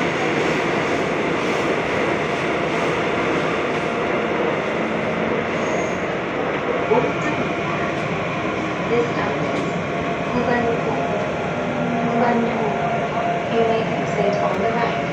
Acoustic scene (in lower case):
subway train